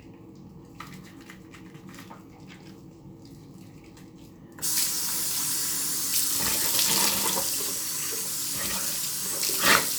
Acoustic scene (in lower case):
restroom